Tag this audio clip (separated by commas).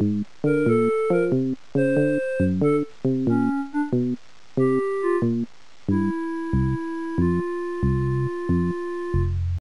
Theme music, Music, Video game music